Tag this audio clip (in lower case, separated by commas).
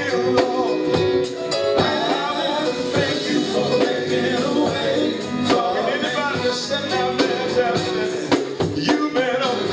music, male singing